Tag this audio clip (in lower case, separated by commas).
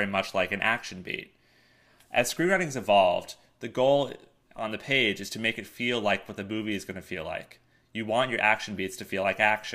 speech